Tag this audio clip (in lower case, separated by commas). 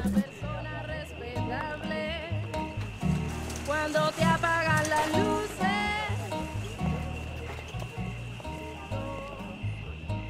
music, tender music